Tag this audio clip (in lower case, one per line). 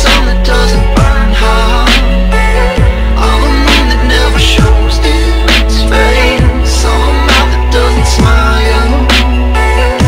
music
dubstep